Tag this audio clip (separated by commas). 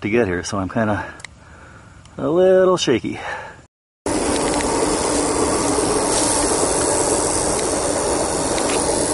Speech